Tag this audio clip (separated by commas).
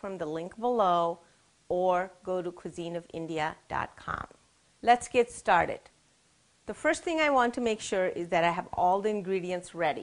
Speech